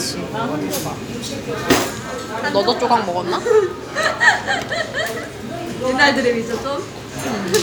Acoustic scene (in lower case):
restaurant